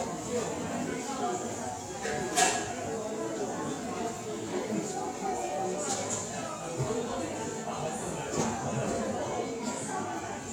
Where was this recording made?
in a cafe